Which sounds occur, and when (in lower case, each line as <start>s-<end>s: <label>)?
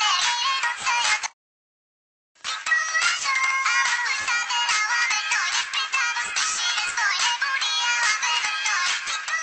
1.2s-1.3s: generic impact sounds
2.4s-9.4s: music
2.4s-9.4s: synthetic singing